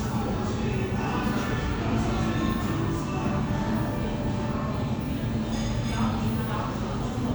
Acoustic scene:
crowded indoor space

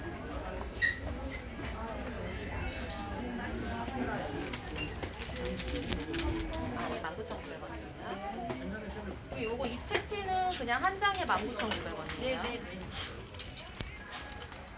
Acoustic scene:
crowded indoor space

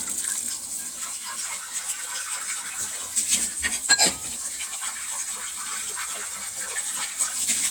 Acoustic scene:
kitchen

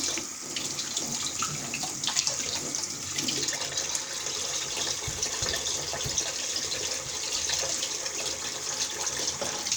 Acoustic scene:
kitchen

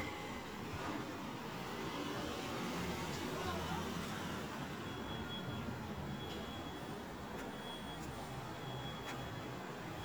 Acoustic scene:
residential area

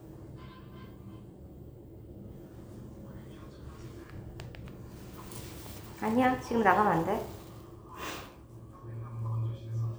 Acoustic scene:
elevator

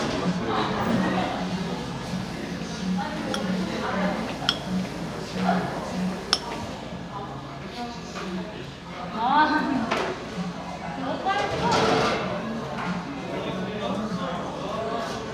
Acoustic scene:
cafe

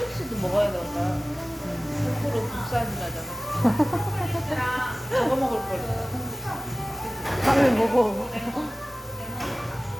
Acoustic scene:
cafe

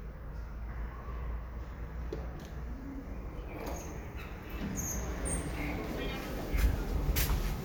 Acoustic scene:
elevator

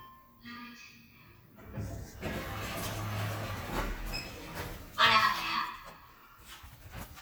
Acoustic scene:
elevator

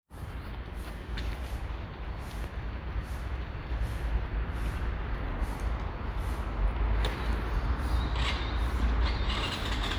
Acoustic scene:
residential area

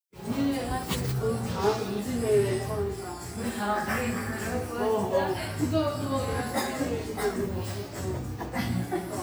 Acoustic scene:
cafe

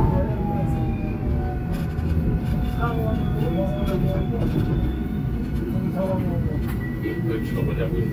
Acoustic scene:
subway train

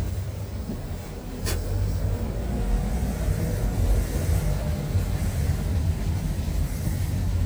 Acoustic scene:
car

